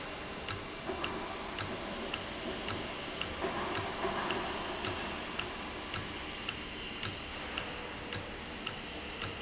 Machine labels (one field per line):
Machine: valve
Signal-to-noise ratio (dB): -6 dB